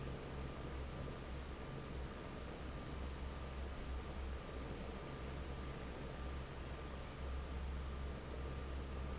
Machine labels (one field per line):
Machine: fan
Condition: normal